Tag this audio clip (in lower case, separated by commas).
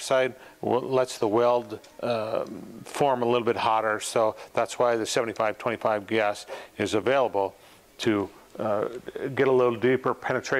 arc welding